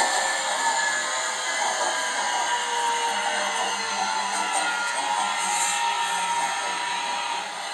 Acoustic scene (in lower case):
subway train